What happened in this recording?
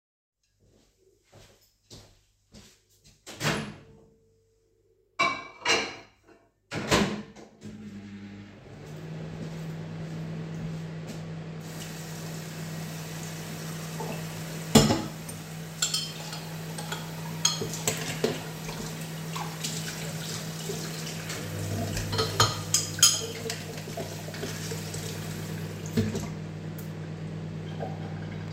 I walk to the microwave, open the door, place a dish inside, close the door and turn the microwave on. I then walk to the sink, turn on the tap and clean the dishes.